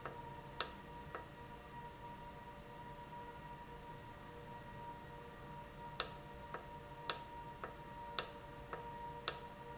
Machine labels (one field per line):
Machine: valve